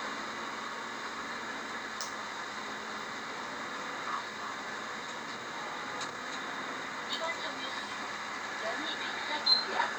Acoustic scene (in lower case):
bus